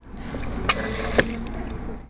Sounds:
Liquid

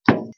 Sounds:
home sounds, Door, Wood, Knock

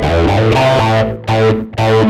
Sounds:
Bass guitar, Musical instrument, Plucked string instrument, Guitar, Electric guitar, Music

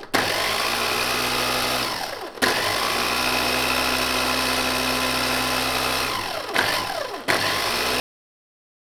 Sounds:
home sounds

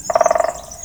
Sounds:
Bird, Animal, Wild animals

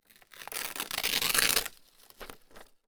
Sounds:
Tearing

